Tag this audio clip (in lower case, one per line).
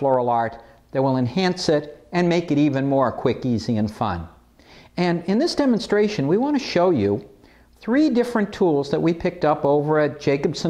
speech